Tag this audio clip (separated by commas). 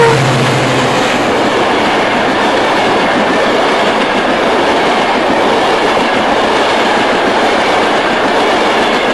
Vehicle